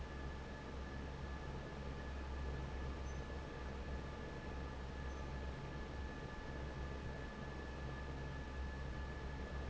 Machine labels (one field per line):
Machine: fan